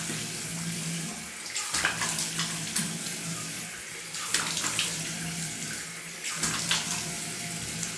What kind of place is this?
restroom